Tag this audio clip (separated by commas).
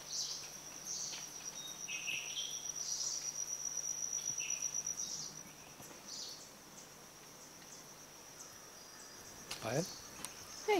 Chirp, Bird vocalization, Bird, tweeting